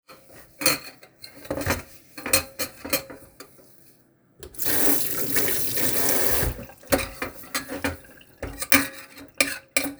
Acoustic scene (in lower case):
kitchen